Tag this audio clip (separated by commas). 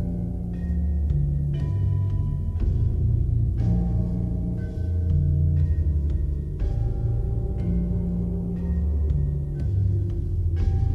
Music